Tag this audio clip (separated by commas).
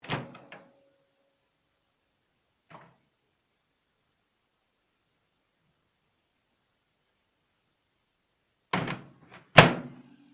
home sounds, Microwave oven